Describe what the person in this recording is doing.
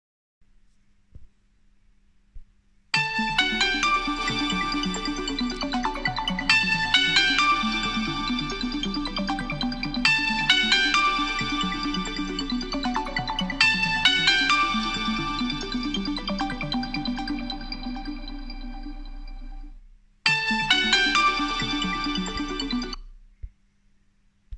i stay in the living room sited and make the phone ring